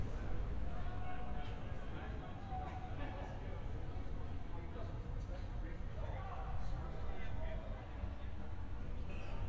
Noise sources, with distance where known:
person or small group talking, far

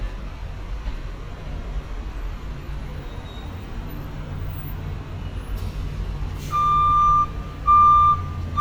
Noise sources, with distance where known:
large-sounding engine
reverse beeper, near

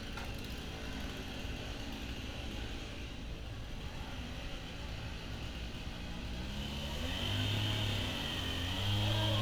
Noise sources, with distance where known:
small-sounding engine, near
chainsaw, near

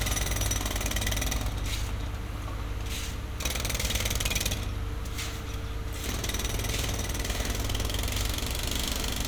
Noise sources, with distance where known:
jackhammer, near

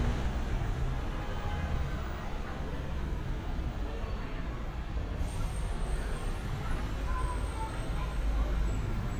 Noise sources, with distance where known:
engine of unclear size
car horn, far
person or small group shouting, far

